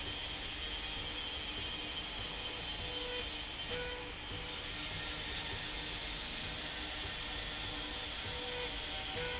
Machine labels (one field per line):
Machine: slide rail